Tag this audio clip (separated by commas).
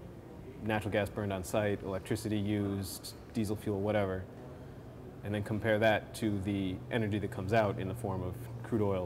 Speech